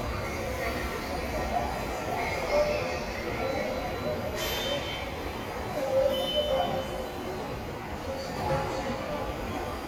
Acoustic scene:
subway station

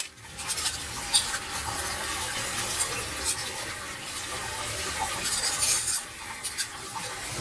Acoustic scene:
kitchen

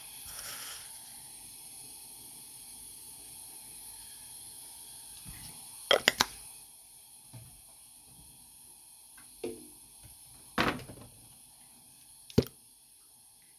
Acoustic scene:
kitchen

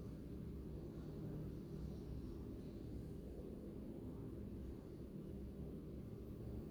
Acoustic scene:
elevator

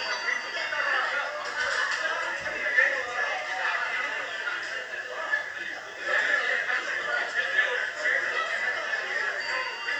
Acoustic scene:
crowded indoor space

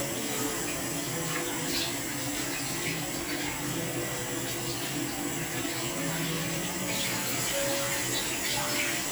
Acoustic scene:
restroom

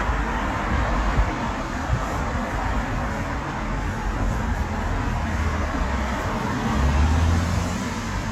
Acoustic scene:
street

